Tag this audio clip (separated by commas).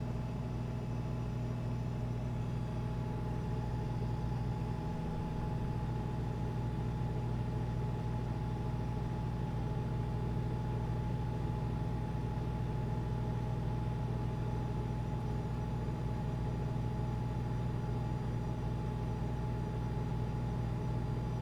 Engine